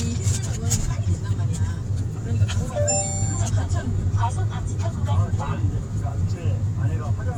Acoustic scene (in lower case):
car